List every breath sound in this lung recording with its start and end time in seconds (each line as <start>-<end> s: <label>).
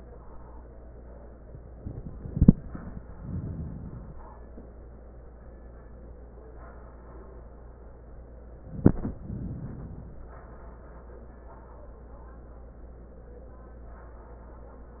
3.03-4.28 s: inhalation
9.19-10.34 s: inhalation